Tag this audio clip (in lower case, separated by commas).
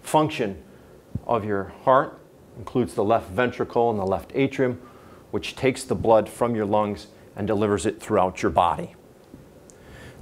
inside a small room, speech